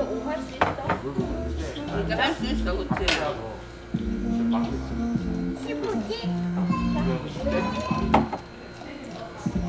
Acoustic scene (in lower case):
crowded indoor space